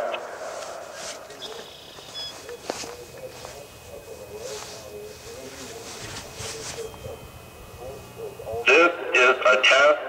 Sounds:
speech

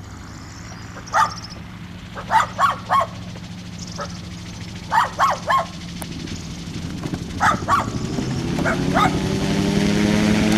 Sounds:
animal, vehicle

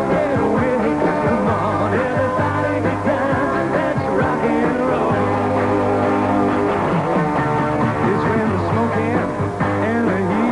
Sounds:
music, rock and roll

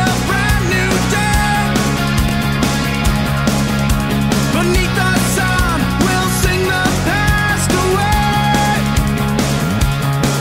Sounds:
happy music, music, soul music

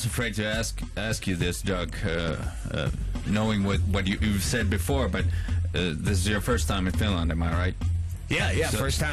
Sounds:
radio, music, speech

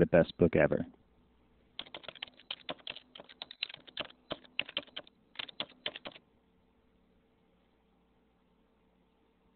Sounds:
speech

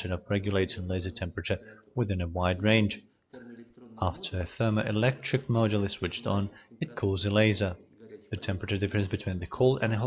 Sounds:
speech

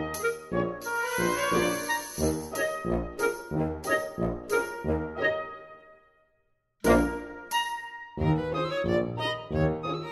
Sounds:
music

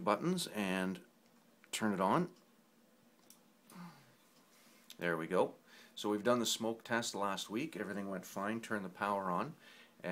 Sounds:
speech

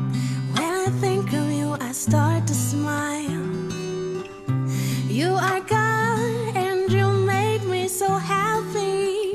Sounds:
happy music, music, guitar

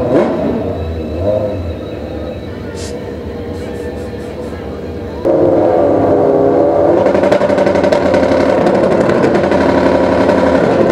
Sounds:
motorcycle, vehicle

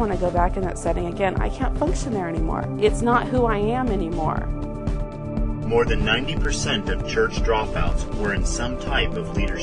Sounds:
speech, music

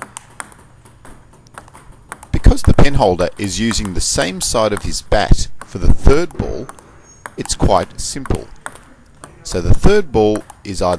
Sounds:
playing table tennis

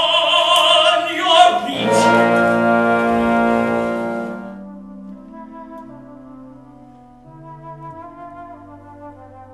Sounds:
opera, music

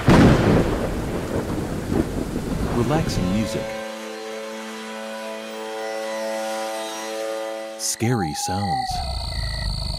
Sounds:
thunderstorm, music, speech

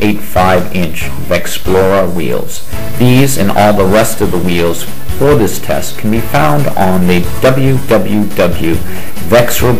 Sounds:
speech, music

